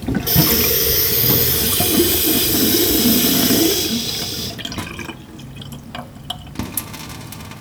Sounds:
home sounds, faucet, sink (filling or washing)

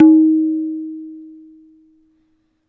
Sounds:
tabla, percussion, music, drum, musical instrument

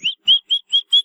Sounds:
wild animals, bird, animal, chirp, bird song

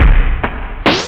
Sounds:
scratching (performance technique), music, musical instrument

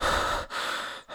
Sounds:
breathing, respiratory sounds

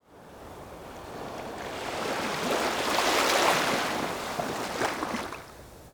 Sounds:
ocean, surf, water

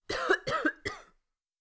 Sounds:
cough, respiratory sounds

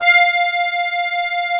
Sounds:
accordion, musical instrument, music

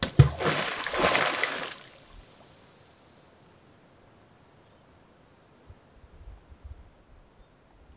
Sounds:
splatter, water, liquid

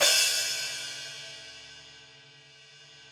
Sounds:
musical instrument, hi-hat, cymbal, crash cymbal, percussion, music

